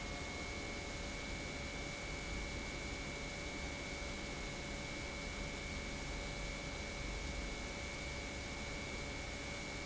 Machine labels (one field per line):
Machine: pump